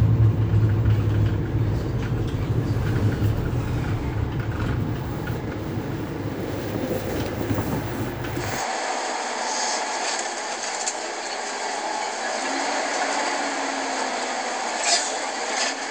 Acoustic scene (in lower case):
bus